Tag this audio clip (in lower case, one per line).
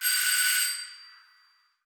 doorbell
door
alarm
home sounds